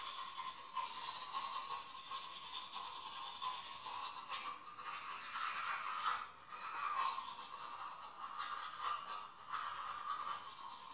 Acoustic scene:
restroom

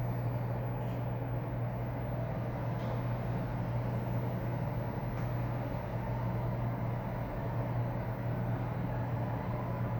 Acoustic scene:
elevator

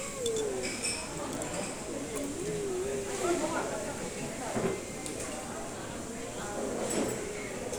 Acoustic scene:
restaurant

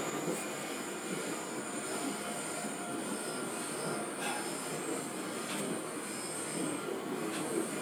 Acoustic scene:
subway train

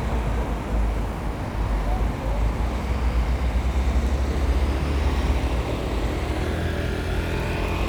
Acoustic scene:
street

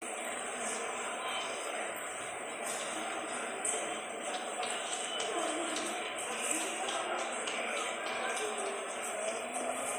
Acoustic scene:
subway station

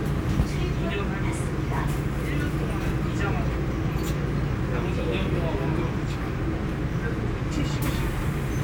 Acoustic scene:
subway train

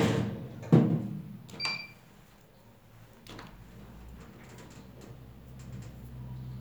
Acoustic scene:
elevator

